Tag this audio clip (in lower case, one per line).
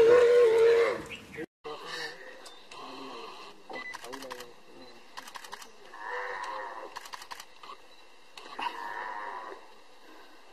animal
wild animals